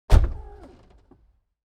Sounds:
car
vehicle
motor vehicle (road)

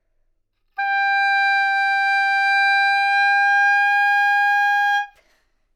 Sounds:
musical instrument
wind instrument
music

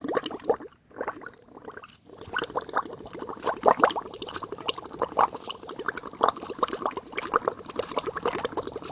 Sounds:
liquid

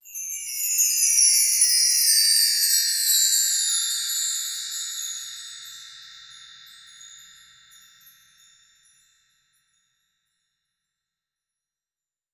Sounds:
bell
chime

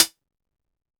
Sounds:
musical instrument
hi-hat
percussion
music
cymbal

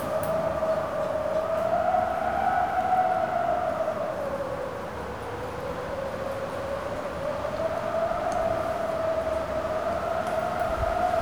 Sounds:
wind

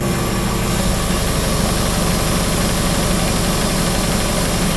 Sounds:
engine

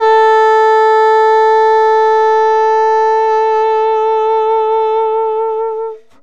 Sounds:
woodwind instrument
music
musical instrument

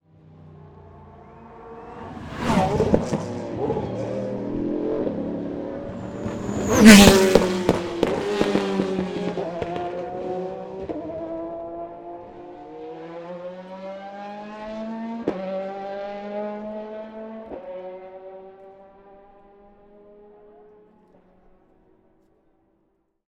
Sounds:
car
vroom
engine
motor vehicle (road)
vehicle
race car

